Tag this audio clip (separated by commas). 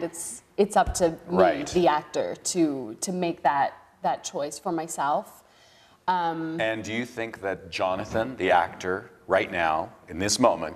Speech